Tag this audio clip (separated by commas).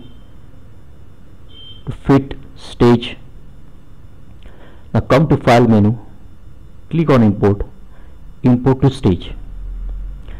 Speech